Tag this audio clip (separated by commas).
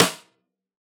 Music, Percussion, Snare drum, Drum, Musical instrument